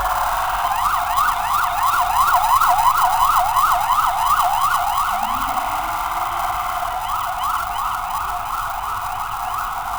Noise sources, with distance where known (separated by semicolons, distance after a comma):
siren, near